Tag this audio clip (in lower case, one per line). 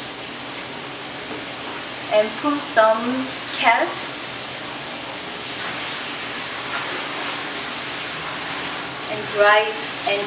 speech